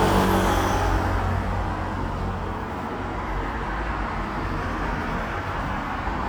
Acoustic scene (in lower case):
street